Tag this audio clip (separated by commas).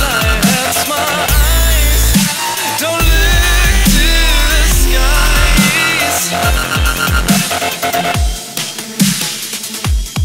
Dubstep